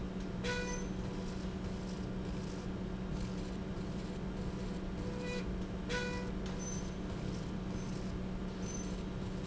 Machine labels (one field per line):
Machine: slide rail